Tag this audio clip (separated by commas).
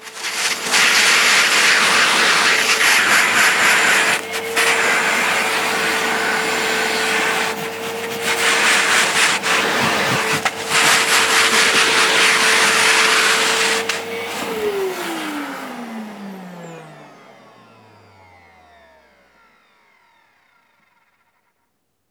home sounds